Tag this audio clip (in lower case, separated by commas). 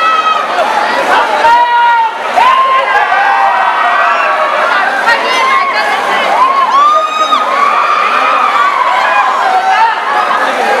cheering, speech, crowd